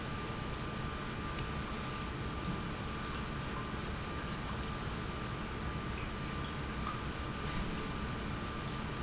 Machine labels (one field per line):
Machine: pump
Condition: normal